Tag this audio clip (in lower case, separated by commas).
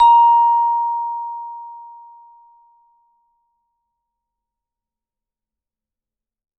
musical instrument, percussion, mallet percussion, music